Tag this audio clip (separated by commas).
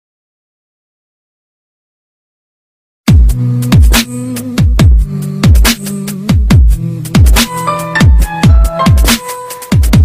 Electronic music, Dubstep, Music, Drum and bass